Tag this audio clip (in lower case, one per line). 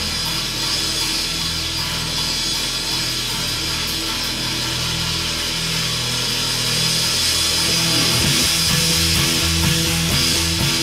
music
musical instrument
drum
drum kit
bass drum